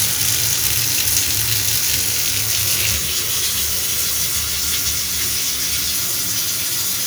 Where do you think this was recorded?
in a restroom